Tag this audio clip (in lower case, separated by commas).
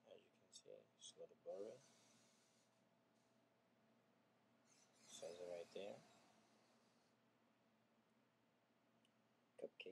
speech